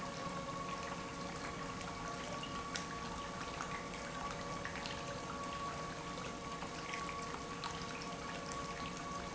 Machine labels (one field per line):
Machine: pump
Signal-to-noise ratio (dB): 0 dB